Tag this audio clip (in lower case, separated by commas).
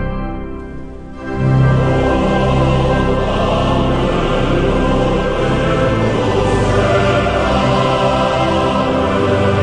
music